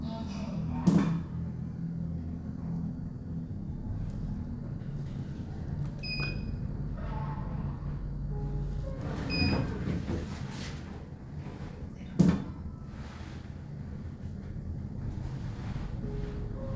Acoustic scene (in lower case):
elevator